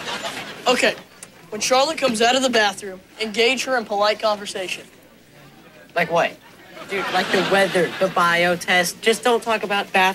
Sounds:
Speech

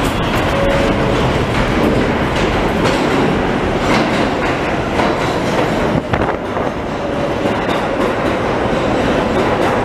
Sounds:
subway

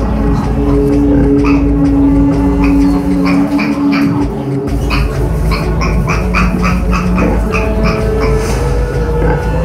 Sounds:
Oink, Music

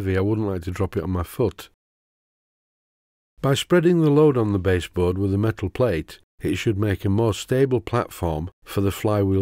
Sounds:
Speech

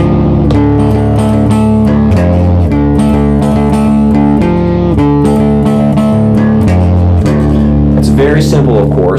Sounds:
Guitar, Speech, Music

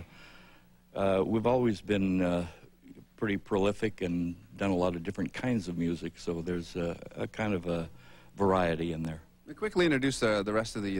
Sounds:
Speech

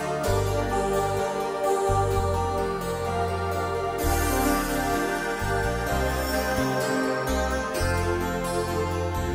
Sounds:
Harpsichord

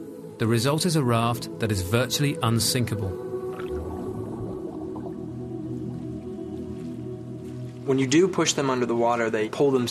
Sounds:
Speech, Music

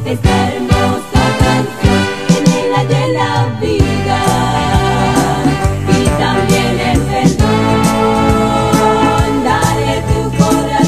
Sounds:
Orchestra, Song, Soul music, Music, Pop music, Christian music

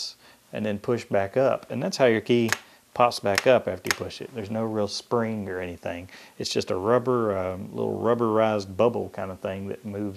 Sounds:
Speech, Computer keyboard

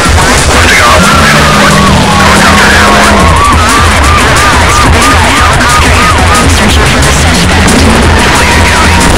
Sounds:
Speech, Police car (siren), Car, Music, auto racing

